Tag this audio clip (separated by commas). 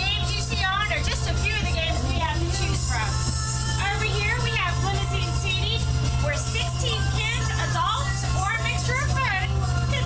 Music, Speech